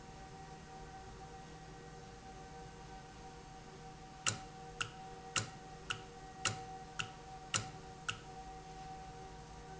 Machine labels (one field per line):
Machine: valve